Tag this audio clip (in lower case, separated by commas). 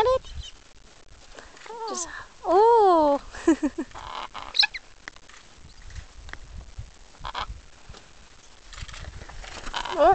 bird, speech